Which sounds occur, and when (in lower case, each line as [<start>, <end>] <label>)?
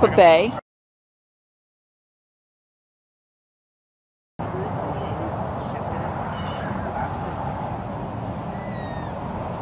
[0.00, 0.59] female speech
[4.36, 5.26] human sounds
[4.36, 9.61] waves
[4.36, 9.61] wind
[5.66, 6.07] human sounds
[6.27, 6.73] bird song
[6.29, 7.18] human sounds
[8.46, 9.16] bird song